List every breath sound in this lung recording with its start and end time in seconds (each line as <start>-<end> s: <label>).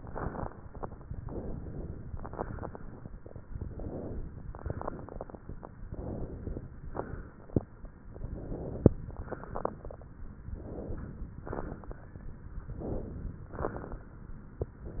0.00-0.56 s: exhalation
0.00-0.56 s: crackles
1.23-1.99 s: inhalation
2.11-2.83 s: exhalation
2.11-2.83 s: crackles
3.52-4.42 s: inhalation
4.52-5.57 s: exhalation
4.52-5.57 s: crackles
5.87-6.63 s: inhalation
6.92-7.72 s: exhalation
6.92-7.72 s: crackles
8.08-8.95 s: inhalation
9.07-10.09 s: exhalation
9.07-10.09 s: crackles
10.52-11.34 s: inhalation
11.46-12.28 s: exhalation
11.46-12.28 s: crackles
12.63-13.45 s: inhalation
13.49-14.19 s: exhalation
13.49-14.19 s: crackles
14.90-15.00 s: inhalation